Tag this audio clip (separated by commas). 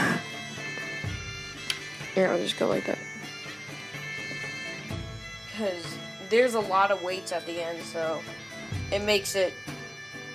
Bagpipes